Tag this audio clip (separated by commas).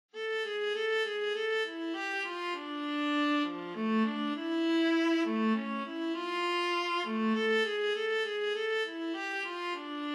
Bowed string instrument, Musical instrument, Music